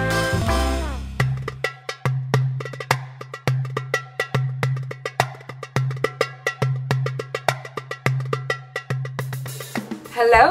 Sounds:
music

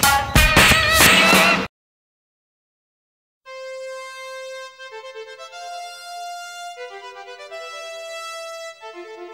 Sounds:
music

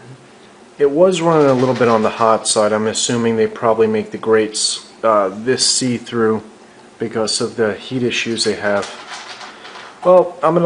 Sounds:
speech

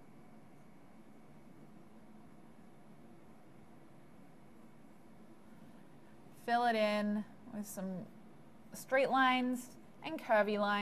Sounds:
speech, silence

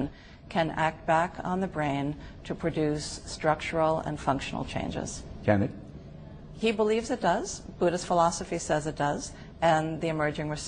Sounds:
speech

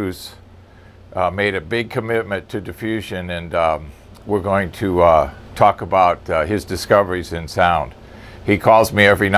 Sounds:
speech

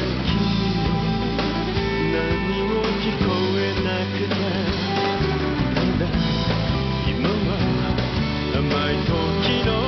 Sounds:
male singing, music

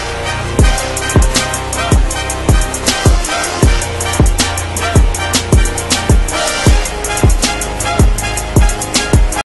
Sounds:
music

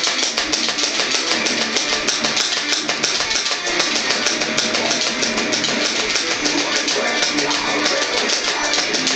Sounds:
acoustic guitar, plucked string instrument, music, guitar

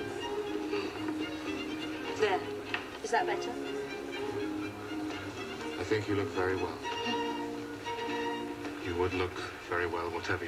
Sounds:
speech, music

